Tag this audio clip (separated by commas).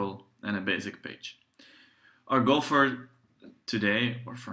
Speech